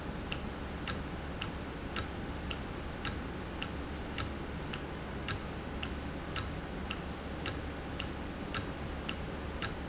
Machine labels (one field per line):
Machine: valve